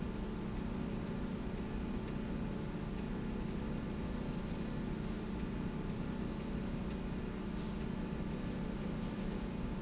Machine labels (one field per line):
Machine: slide rail